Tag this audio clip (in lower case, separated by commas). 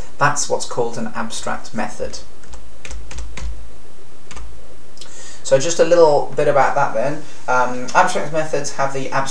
speech, typing